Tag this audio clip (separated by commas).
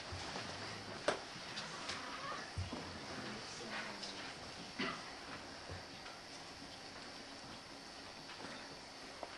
Speech